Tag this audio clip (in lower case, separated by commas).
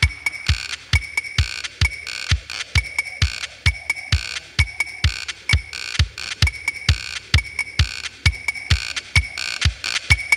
sampler, music, drum machine